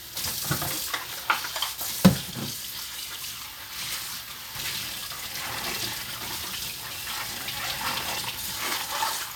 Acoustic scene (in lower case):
kitchen